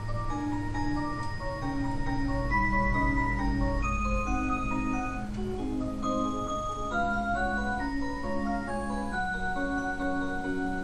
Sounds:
xylophone

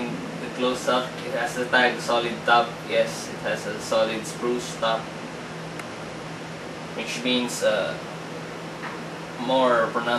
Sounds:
speech

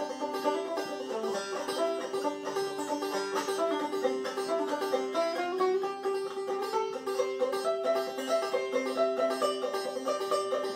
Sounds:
banjo, music

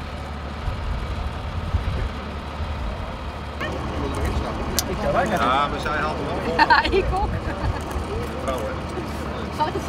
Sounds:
speech

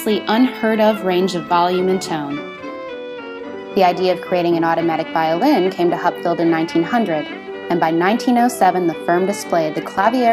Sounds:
music, speech

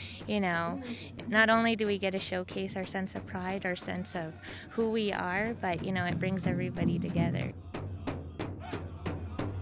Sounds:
speech, music

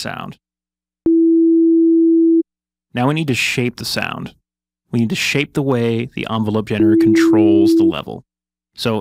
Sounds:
speech

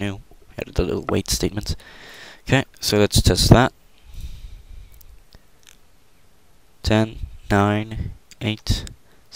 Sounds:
clicking, speech

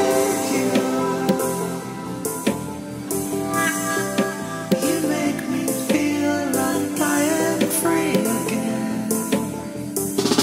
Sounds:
dubstep, music

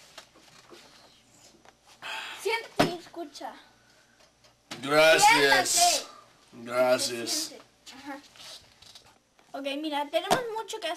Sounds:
speech

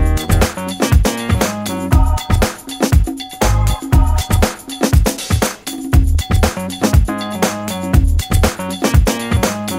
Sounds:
music, pop music

